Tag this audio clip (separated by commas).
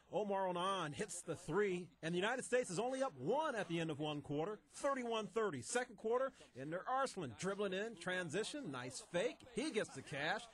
Speech